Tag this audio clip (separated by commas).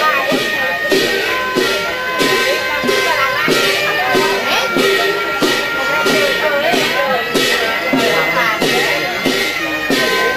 Music, Speech